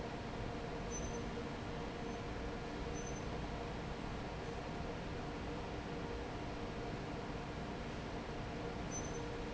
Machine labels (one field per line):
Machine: fan